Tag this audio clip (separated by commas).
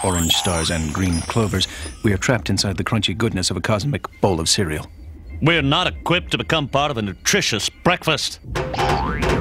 Music, Speech